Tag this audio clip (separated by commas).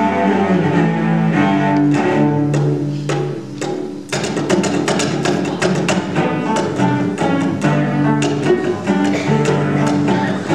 Cello, Music, Bowed string instrument, Musical instrument